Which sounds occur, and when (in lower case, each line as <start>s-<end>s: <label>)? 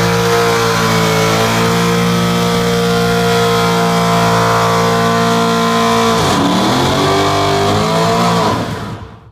0.0s-9.3s: revving
0.0s-9.3s: car